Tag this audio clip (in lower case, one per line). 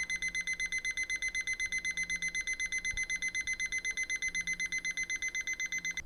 alarm